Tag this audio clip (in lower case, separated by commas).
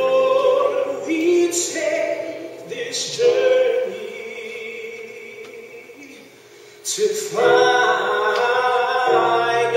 music, vocal music, chant